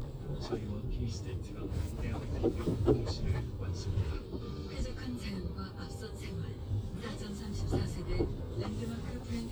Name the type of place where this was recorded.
car